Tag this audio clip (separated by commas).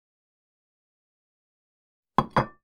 dishes, pots and pans, home sounds